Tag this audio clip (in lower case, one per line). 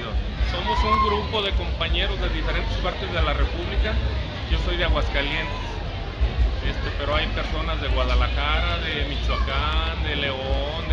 inside a public space
speech